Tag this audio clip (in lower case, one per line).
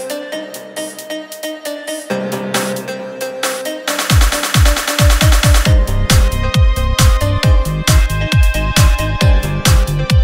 music
blues